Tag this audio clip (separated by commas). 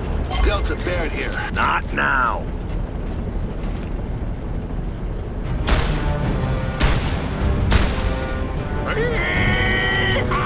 Speech